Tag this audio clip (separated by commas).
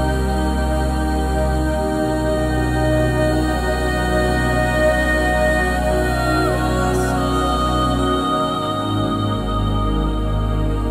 Music